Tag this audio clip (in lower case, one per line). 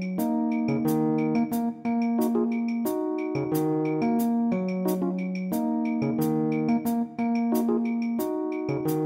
music
music of africa
afrobeat